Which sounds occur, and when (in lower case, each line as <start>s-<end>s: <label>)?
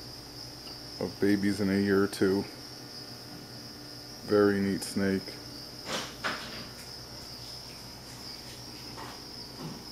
0.0s-9.9s: mechanisms
1.0s-1.1s: man speaking
1.2s-2.5s: man speaking
4.2s-5.3s: man speaking
5.8s-6.0s: surface contact
6.2s-6.7s: surface contact
8.9s-9.1s: generic impact sounds
9.5s-9.8s: generic impact sounds